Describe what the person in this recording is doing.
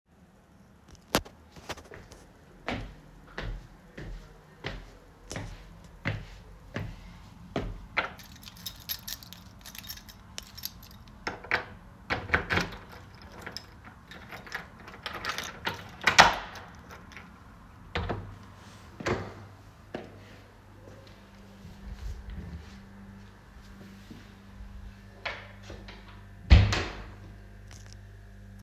I moved to my door, then i put my keys inside the lock, and opened the door, then closed the door